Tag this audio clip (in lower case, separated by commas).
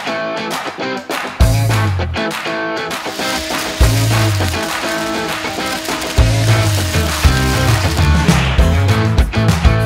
hedge trimmer running